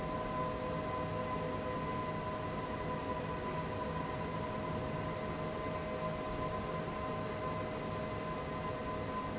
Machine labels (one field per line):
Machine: fan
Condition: abnormal